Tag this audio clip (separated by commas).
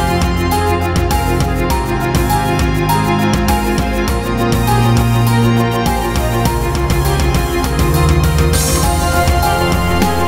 Music